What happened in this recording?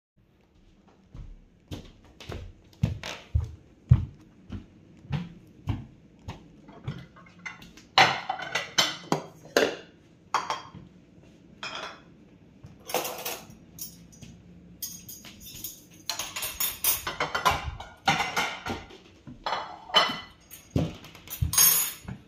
Moving twoards person, choosing cutlery and then dishes.